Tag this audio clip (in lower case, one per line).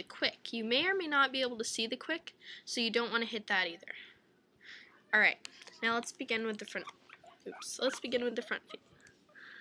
speech